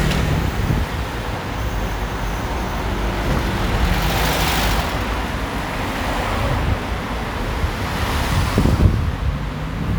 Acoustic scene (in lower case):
street